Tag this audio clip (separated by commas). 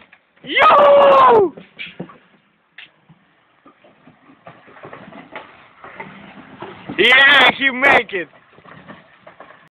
Speech